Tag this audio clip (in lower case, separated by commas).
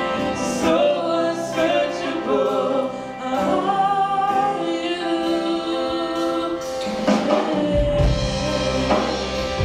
female singing, male singing, music